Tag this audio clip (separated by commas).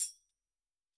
Music, Percussion, Musical instrument, Tambourine